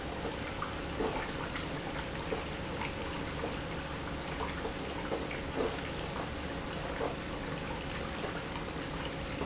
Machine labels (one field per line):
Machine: pump